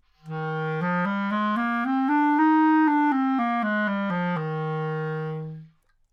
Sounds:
wind instrument, music, musical instrument

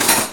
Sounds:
silverware, home sounds

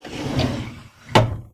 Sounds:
drawer open or close, home sounds

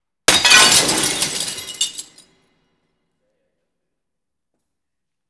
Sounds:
glass, shatter

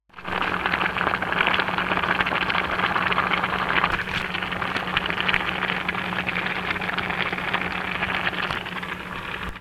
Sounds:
boiling, liquid

